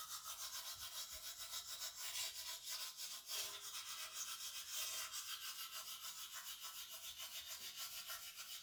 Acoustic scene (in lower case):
restroom